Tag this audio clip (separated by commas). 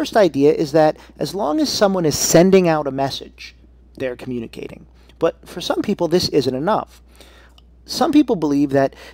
Speech